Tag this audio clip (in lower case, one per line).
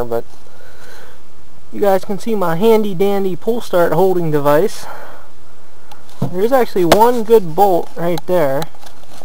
speech